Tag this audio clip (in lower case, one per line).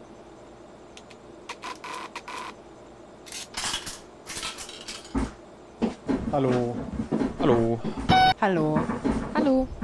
bus
speech